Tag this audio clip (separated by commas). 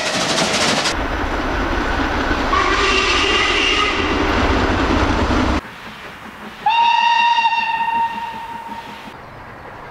train whistling